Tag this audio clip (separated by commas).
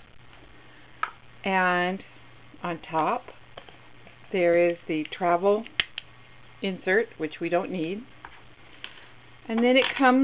Speech